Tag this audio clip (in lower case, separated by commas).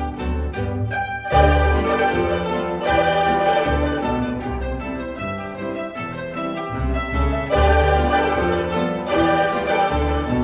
music, classical music, bowed string instrument